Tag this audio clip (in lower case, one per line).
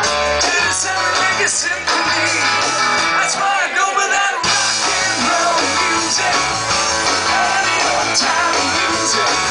rock and roll
music